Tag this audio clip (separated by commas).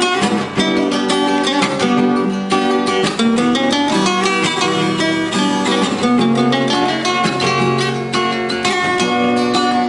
Musical instrument, Guitar, Strum, Plucked string instrument, Music